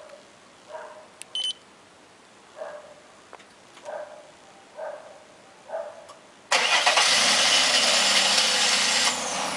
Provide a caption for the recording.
A dog barks, a beep occurs, and a motor vehicle engine starts